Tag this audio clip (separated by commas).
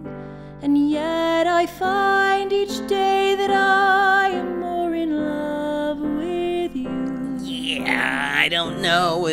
Music